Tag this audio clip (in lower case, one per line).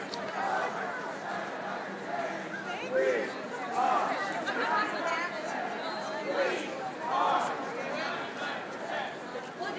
speech
chatter
outside, urban or man-made